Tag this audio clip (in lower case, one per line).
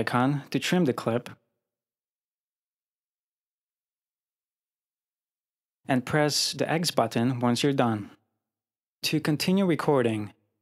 speech